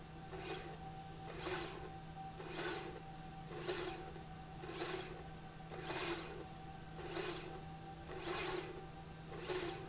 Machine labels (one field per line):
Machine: slide rail